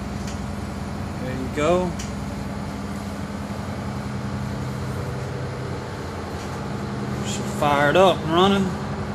A bus idles as a person talks closely nearby